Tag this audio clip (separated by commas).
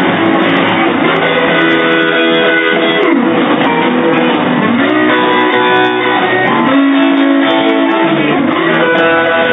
Musical instrument, Music, Blues, Guitar